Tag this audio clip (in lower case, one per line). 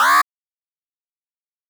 alarm